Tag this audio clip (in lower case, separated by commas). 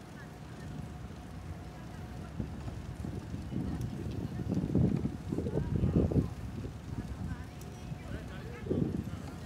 speech, vehicle